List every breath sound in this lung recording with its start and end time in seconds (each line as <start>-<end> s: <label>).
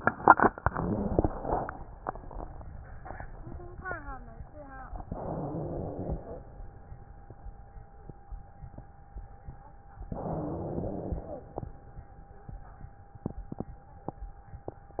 5.06-6.43 s: exhalation
5.06-6.43 s: wheeze
10.15-11.52 s: exhalation
10.15-11.52 s: wheeze
14.99-15.00 s: exhalation
14.99-15.00 s: wheeze